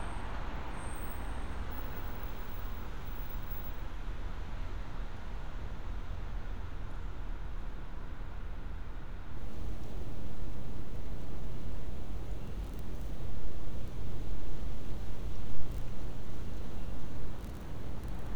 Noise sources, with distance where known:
background noise

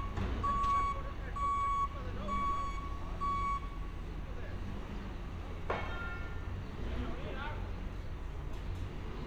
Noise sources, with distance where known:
reverse beeper, near; person or small group talking

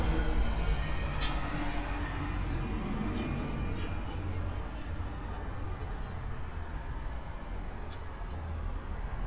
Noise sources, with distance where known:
person or small group talking, far

